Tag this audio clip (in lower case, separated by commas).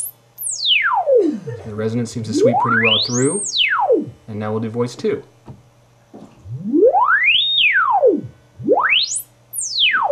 speech, inside a small room